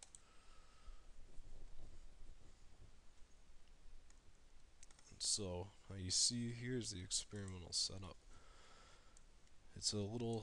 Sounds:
Speech

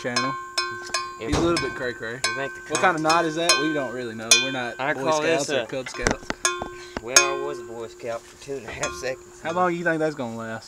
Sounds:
cattle

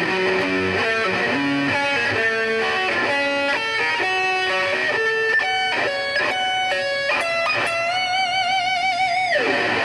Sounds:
Musical instrument, Guitar, Music

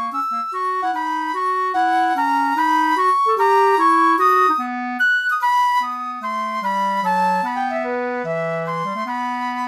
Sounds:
Wind instrument

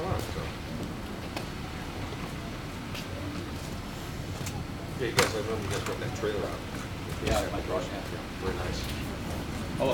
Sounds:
Speech

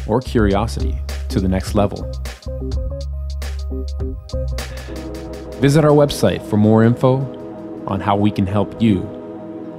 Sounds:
Speech, Music, Electronic music

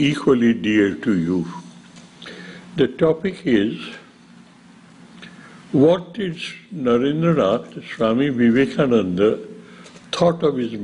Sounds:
Speech

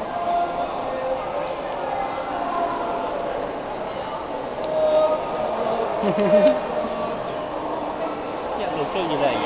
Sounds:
Speech, Male singing

